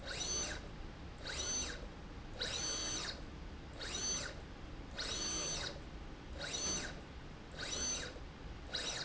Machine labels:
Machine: slide rail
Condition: abnormal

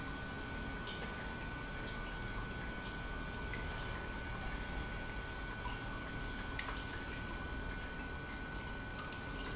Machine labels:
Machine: pump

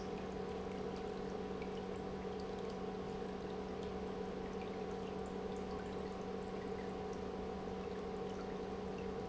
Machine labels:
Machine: pump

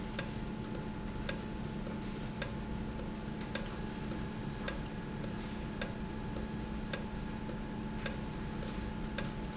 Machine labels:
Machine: valve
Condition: normal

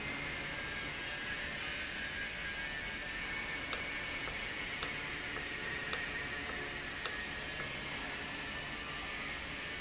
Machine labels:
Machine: valve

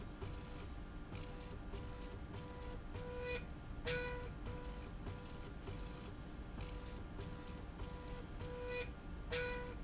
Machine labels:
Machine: slide rail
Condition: normal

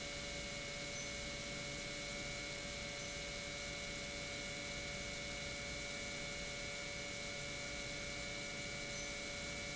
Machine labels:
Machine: pump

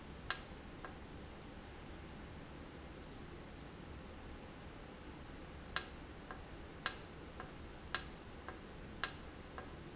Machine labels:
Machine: valve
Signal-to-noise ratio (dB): 6 dB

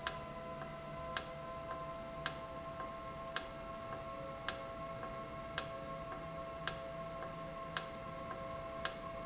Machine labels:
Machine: valve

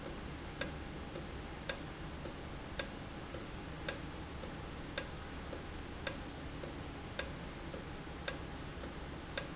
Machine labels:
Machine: valve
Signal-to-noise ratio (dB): 0 dB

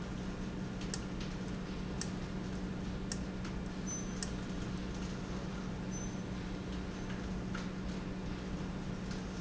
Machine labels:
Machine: valve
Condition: abnormal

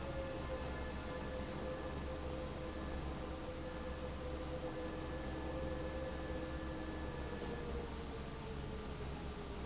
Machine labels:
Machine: fan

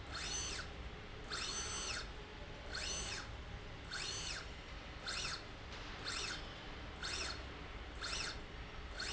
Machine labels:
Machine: slide rail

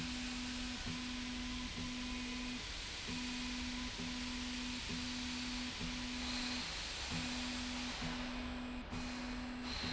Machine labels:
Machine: slide rail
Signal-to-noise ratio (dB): 0 dB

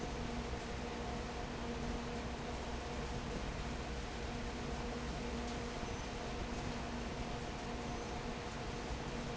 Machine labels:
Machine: fan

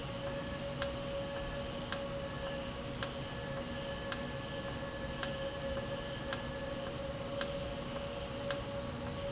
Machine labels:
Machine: valve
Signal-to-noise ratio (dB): -6 dB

